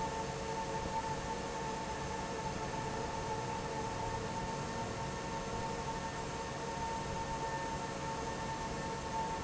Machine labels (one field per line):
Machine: fan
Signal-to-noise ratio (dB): -6 dB